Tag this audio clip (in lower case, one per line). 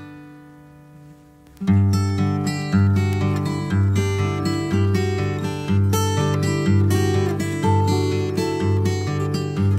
music